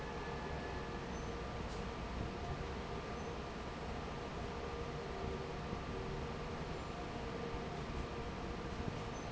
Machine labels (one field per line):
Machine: fan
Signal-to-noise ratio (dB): 0 dB